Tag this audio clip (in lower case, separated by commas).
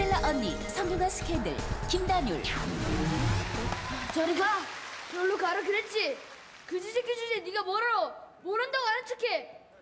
speech, music